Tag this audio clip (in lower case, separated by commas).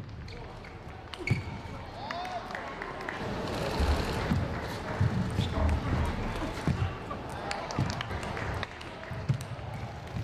speech